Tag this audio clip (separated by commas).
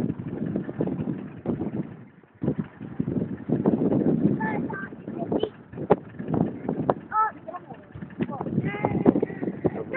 Speech, Vehicle